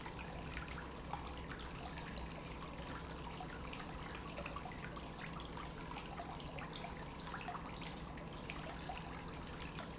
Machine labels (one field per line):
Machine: pump